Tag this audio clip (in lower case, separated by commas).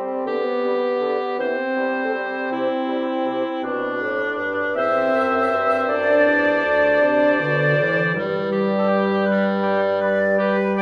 playing bassoon